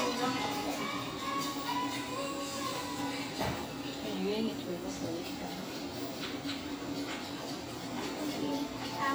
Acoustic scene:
cafe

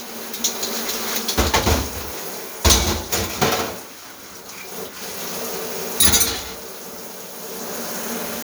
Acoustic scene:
kitchen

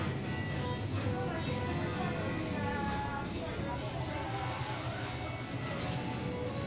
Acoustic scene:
crowded indoor space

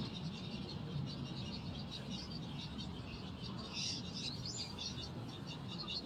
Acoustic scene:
park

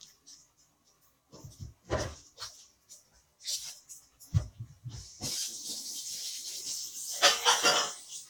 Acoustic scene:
kitchen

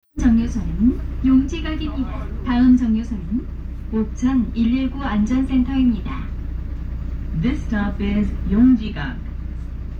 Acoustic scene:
bus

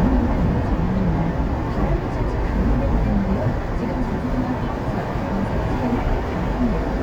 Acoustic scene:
car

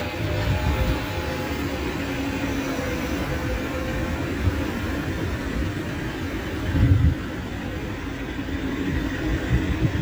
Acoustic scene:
residential area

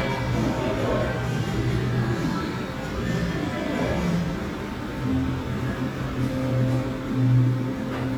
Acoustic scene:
cafe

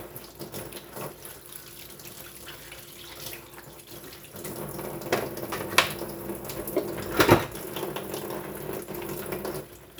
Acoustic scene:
kitchen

